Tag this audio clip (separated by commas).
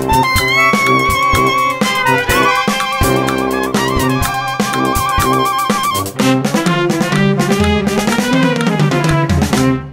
Cymbal, Musical instrument, Drum, Bass drum, Snare drum, Music, Drum kit